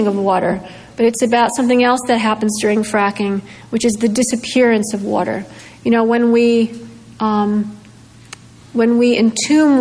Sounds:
woman speaking, speech

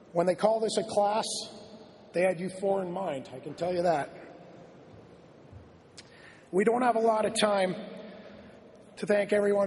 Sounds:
narration, man speaking, speech

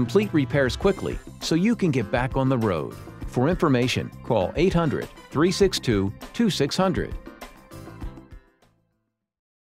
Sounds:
speech, music

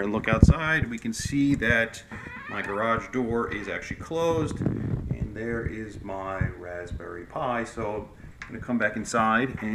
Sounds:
door, speech

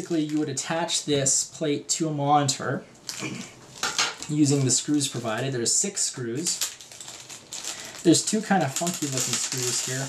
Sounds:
inside a small room, speech

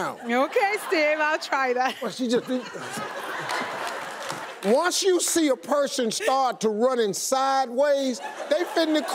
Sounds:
speech, run

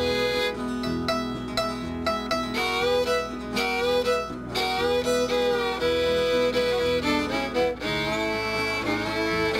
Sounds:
violin, pizzicato, bowed string instrument

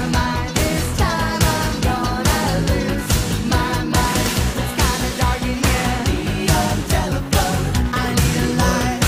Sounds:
music

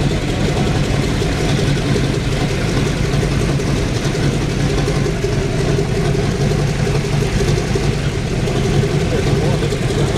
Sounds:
engine, idling, vehicle, heavy engine (low frequency)

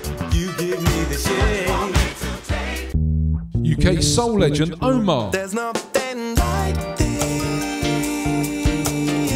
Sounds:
music, reggae, soul music

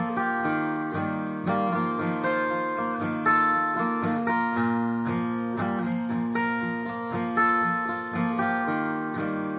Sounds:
music, plucked string instrument, guitar, playing acoustic guitar, acoustic guitar, strum, musical instrument

